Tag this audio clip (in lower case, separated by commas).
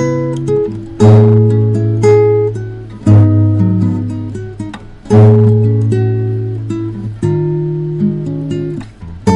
music, guitar, acoustic guitar, musical instrument, strum, plucked string instrument